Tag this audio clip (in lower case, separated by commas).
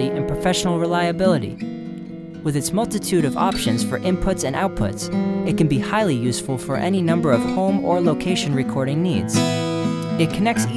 electric guitar, guitar, music, plucked string instrument, speech, acoustic guitar, musical instrument